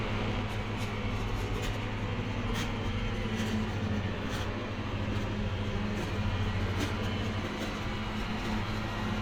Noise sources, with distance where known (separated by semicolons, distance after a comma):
engine of unclear size, near